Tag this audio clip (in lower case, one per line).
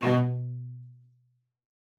music
bowed string instrument
musical instrument